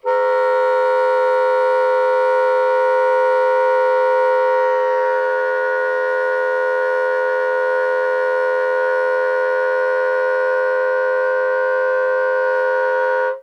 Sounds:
music
woodwind instrument
musical instrument

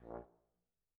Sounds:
brass instrument
music
musical instrument

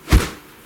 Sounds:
swish

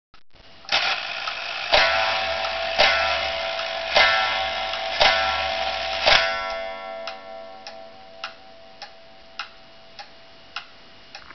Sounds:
clock
mechanisms

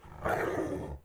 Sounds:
dog
growling
pets
animal

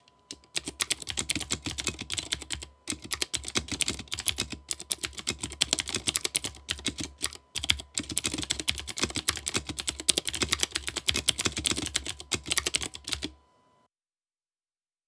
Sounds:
domestic sounds
typing

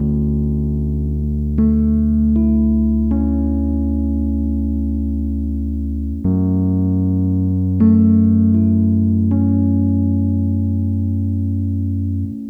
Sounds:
music
keyboard (musical)
musical instrument
piano

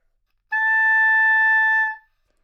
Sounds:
woodwind instrument
musical instrument
music

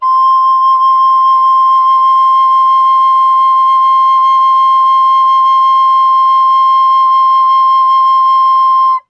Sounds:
woodwind instrument
musical instrument
music

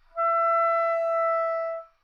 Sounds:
musical instrument
wind instrument
music

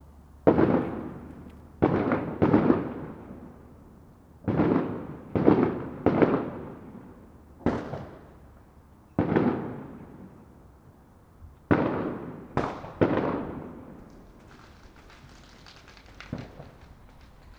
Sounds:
fireworks
explosion

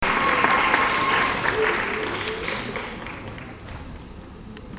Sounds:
applause
crowd
human group actions

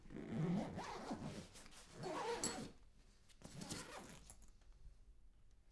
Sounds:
home sounds
zipper (clothing)

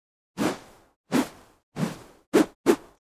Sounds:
swish

